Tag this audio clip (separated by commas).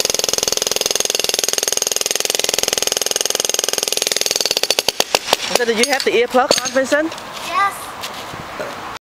Power tool, Tools